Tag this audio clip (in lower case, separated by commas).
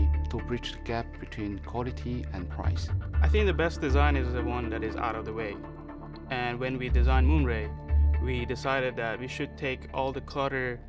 speech, music